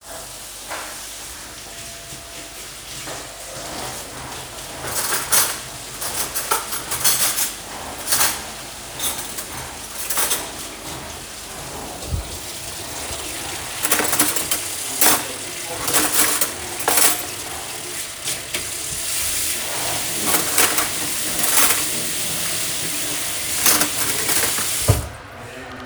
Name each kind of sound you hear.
vacuum cleaner, running water, cutlery and dishes